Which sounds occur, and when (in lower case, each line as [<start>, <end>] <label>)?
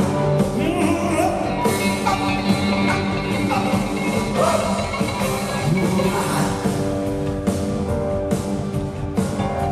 [0.00, 9.71] music
[0.53, 1.46] male singing
[2.03, 2.26] female speech
[2.89, 3.05] female speech
[3.49, 3.71] female speech
[3.93, 4.88] male singing
[5.76, 6.93] male singing